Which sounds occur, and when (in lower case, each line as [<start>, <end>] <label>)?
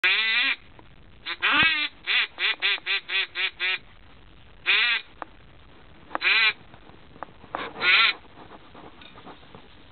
[0.00, 9.91] background noise
[0.04, 0.54] quack
[1.26, 1.89] quack
[1.58, 1.68] generic impact sounds
[2.08, 2.28] quack
[2.41, 2.53] quack
[2.65, 2.99] quack
[3.12, 3.25] quack
[3.38, 3.48] quack
[3.61, 3.79] quack
[4.64, 5.01] quack
[5.16, 5.29] generic impact sounds
[6.08, 6.20] generic impact sounds
[6.21, 6.56] quack
[7.22, 7.34] generic impact sounds
[7.56, 8.13] quack
[8.19, 8.58] generic impact sounds
[8.77, 8.94] generic impact sounds
[9.15, 9.35] generic impact sounds
[9.53, 9.72] generic impact sounds